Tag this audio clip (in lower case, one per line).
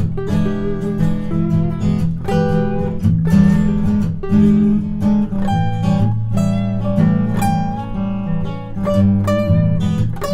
strum
plucked string instrument
musical instrument
acoustic guitar
guitar
music